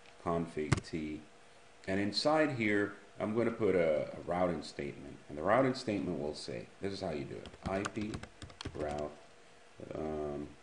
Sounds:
speech, inside a small room

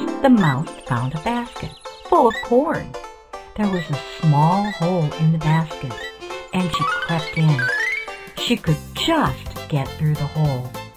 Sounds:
speech, music

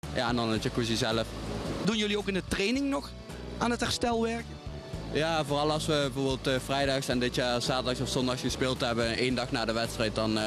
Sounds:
speech, music

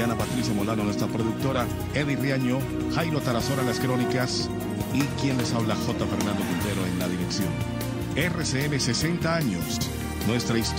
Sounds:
speech, music

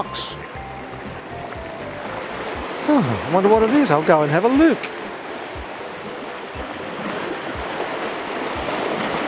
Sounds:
speech, music

